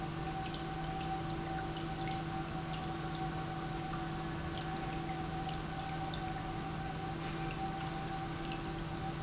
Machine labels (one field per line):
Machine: pump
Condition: normal